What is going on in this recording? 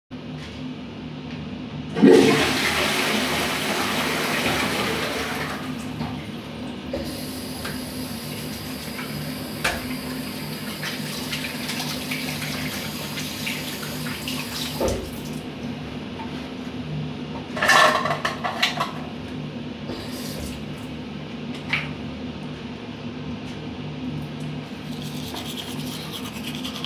I am in the bathroom and the exhaust fan is working in the background. I flushed the toilet, I walk up to the sink, I turn on the water, I wash my hands, I wipe my hands, I grab the toothpaste and the toothbrush, I open the toothbrush, the toothbrush cup drops, I put the toothpaste on my toothbrush, I put the toothpaste back, I brush my teeth